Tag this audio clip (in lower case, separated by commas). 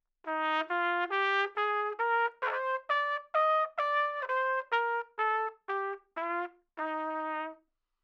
trumpet, brass instrument, musical instrument, music